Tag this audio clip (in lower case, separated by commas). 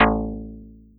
musical instrument, guitar, plucked string instrument, music